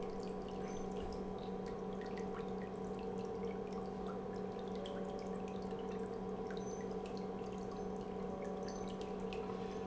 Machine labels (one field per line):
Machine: pump